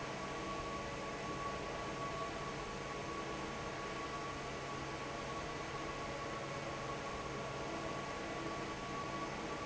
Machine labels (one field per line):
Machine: fan